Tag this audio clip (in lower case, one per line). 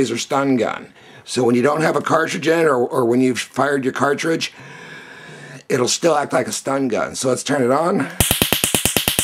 speech